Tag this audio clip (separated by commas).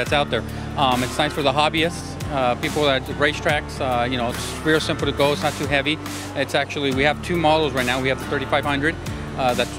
Music, Speech